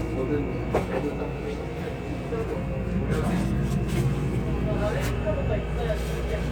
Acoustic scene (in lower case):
subway train